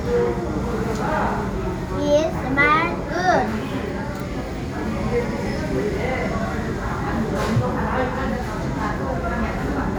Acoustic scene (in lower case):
crowded indoor space